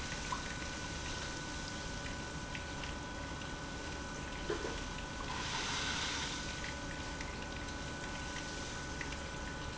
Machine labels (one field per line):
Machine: pump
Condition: abnormal